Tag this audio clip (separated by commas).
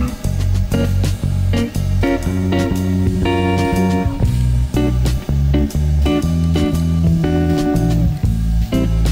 Spray, Music